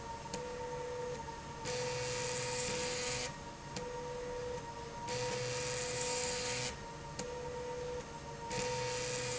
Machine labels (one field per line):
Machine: slide rail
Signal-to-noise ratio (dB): 0 dB